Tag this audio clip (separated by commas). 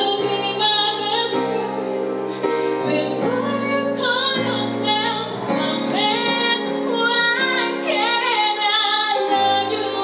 Female singing, Music